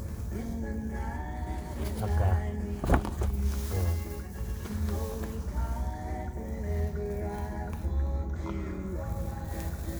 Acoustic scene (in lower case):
car